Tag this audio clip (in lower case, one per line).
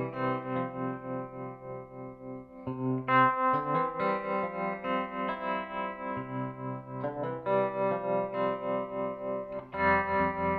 guitar
music
effects unit